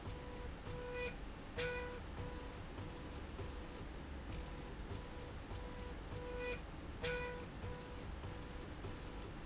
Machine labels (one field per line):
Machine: slide rail